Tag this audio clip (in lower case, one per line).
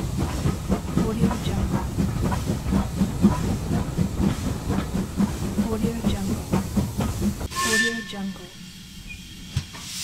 rail transport
railroad car
clickety-clack
train
hiss
steam
sound effect
train whistle